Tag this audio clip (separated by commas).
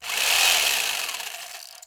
Sawing, Tools